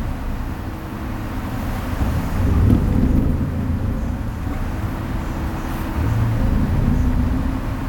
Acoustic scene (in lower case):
bus